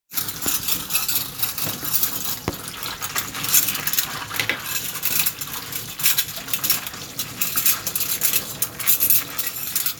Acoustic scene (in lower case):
kitchen